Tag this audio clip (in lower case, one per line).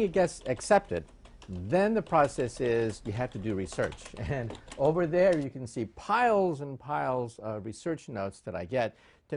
speech